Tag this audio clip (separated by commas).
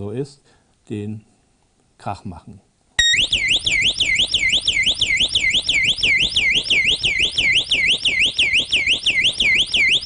Siren, Speech